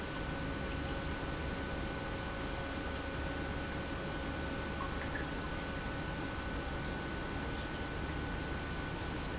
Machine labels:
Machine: pump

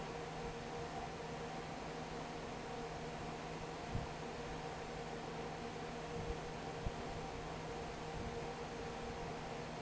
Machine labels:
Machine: fan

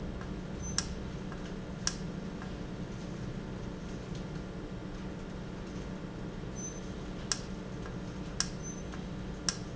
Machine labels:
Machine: valve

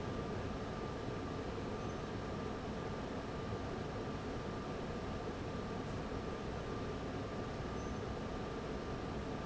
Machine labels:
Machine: fan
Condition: abnormal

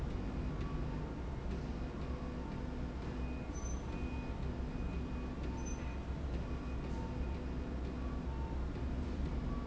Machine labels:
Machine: slide rail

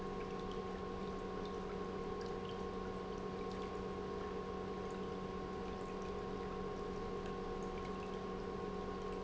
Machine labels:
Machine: pump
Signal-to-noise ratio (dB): 6 dB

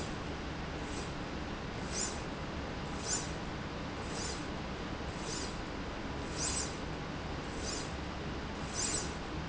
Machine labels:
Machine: slide rail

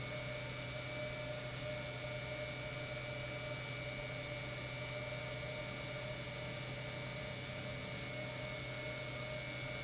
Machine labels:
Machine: pump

